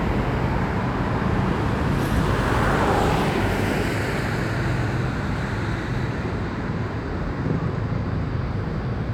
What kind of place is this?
street